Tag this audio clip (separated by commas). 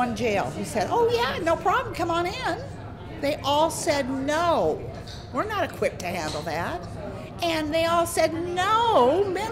Speech